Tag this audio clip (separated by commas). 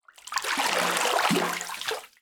Liquid, Splash, Bathtub (filling or washing), home sounds